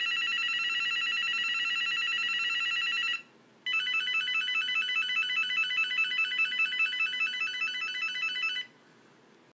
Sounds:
ringtone

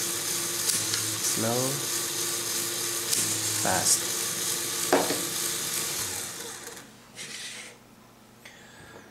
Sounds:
speech

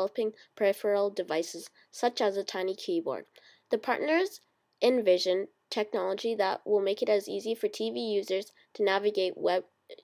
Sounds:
speech

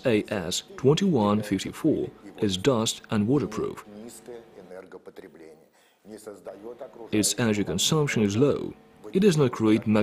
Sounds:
speech

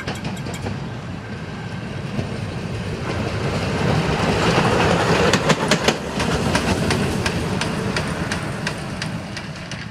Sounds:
train whistling

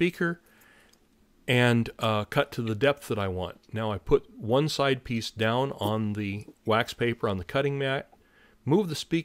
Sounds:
speech

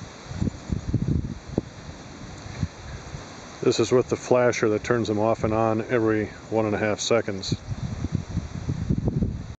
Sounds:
speech

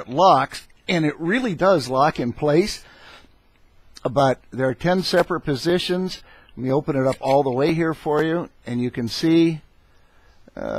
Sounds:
speech

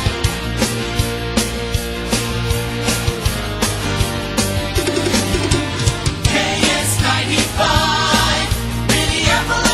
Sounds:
radio
music

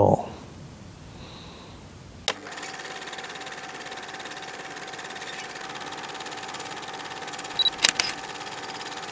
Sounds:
inside a small room
speech

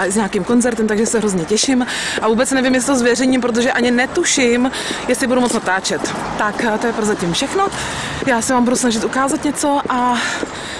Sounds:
speech

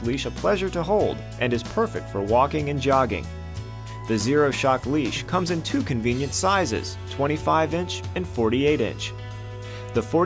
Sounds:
speech
music

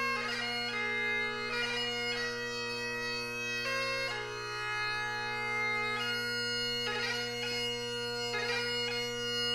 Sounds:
bagpipes
music

